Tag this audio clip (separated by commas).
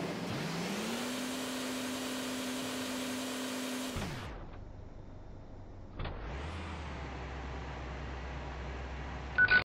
Car, Vehicle